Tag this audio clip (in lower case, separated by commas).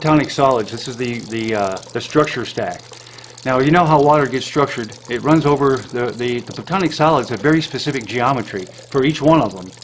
water